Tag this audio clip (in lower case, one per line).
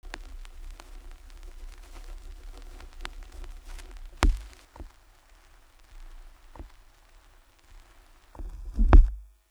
crackle